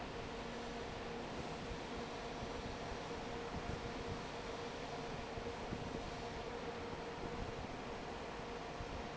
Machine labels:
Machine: fan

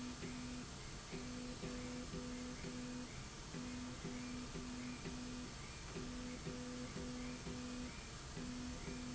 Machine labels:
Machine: slide rail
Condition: normal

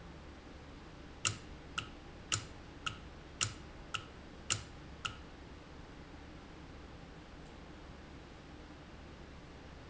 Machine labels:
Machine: valve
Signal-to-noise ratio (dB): 6 dB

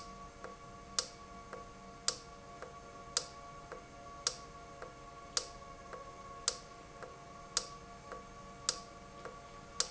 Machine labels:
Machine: valve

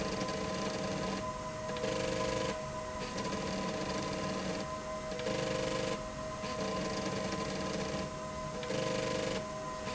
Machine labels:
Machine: slide rail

